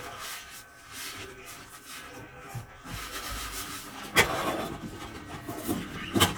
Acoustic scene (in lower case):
kitchen